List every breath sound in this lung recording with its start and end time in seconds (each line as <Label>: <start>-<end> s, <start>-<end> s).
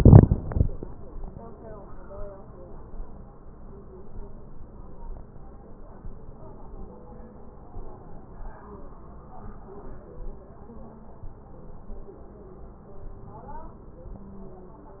Inhalation: 11.23-12.02 s, 13.04-13.83 s